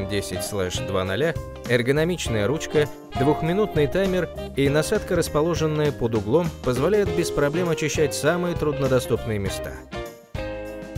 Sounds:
Music, Speech

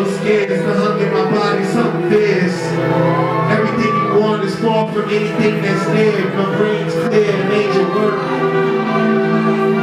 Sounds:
Speech, Music

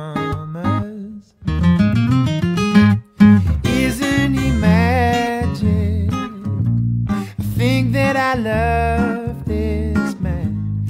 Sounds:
Music

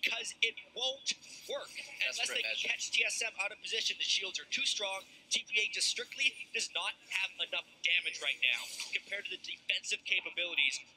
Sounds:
Speech

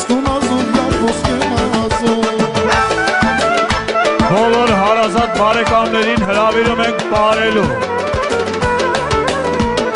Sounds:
Music

